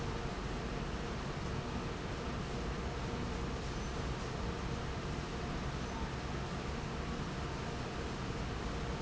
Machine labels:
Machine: fan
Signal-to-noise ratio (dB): -6 dB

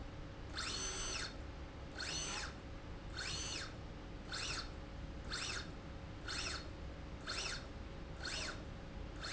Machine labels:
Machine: slide rail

